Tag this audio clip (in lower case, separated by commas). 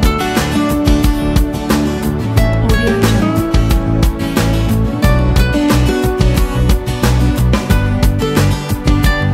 music, speech